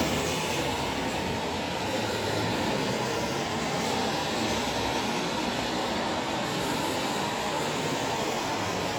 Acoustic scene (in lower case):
street